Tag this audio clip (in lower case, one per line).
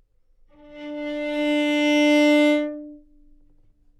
bowed string instrument
music
musical instrument